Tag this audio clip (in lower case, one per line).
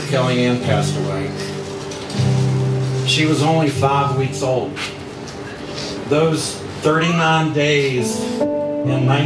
speech
music
narration
male speech